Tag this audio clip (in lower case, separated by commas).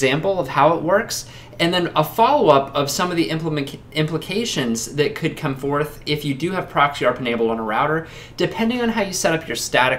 speech